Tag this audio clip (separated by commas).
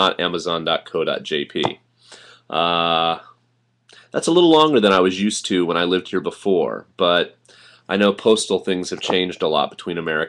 Speech